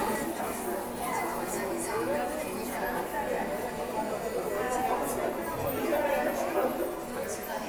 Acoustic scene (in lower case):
subway station